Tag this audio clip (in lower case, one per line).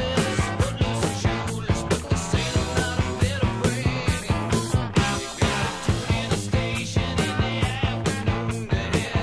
soundtrack music
music
funk